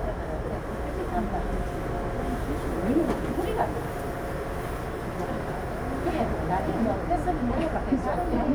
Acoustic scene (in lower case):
subway train